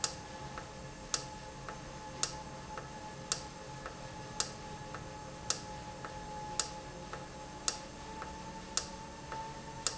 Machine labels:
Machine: valve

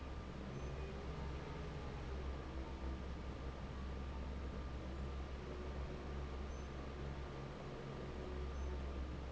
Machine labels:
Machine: fan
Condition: normal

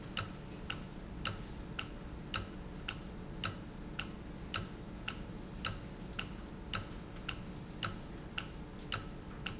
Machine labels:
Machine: valve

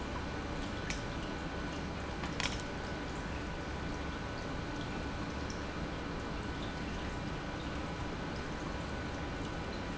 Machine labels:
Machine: pump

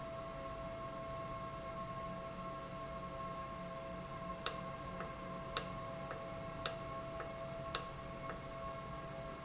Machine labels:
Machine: valve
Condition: normal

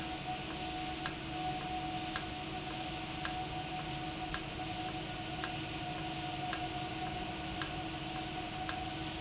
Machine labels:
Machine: valve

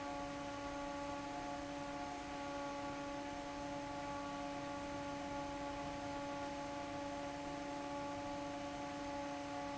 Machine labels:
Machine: fan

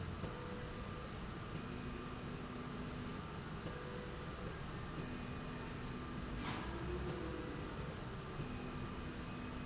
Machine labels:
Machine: slide rail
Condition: normal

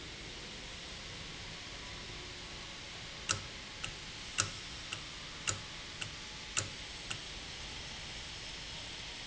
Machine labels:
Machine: valve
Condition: normal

